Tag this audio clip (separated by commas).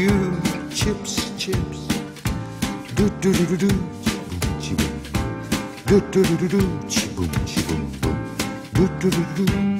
Funk, Music